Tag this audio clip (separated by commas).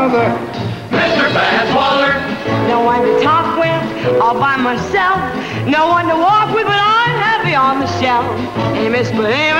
Music